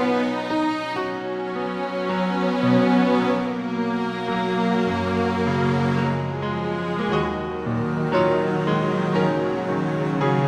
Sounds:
tender music
music

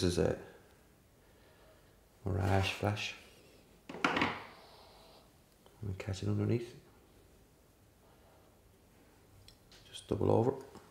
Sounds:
speech

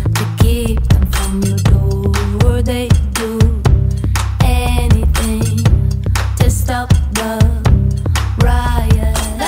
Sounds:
music

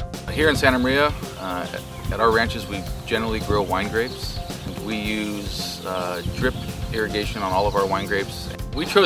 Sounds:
music
speech

